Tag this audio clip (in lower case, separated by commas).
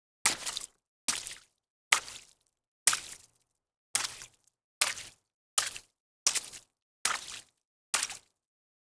splatter, liquid